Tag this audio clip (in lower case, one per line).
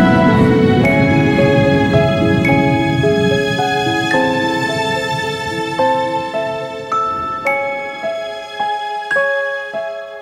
speedboat
music